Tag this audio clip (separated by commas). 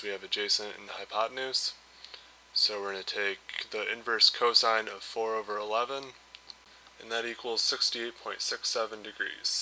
Speech